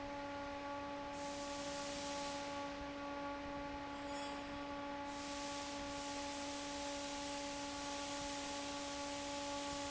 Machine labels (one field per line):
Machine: fan